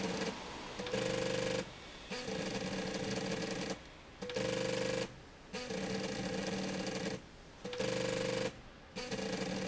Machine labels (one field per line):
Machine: slide rail